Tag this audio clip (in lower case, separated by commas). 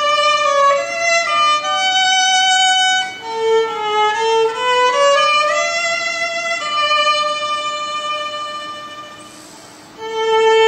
fiddle, music, musical instrument